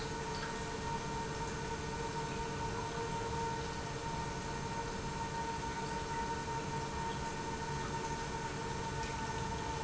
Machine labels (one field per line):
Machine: pump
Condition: normal